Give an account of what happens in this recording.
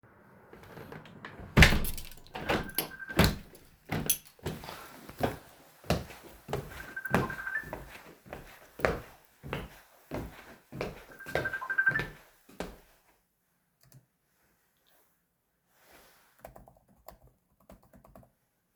I closed the window, while my phone started ringing. I went to my desk to decline the call, and then I started typing on the keyboard.